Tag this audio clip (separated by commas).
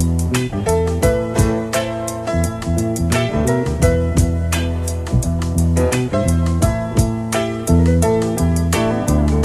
Music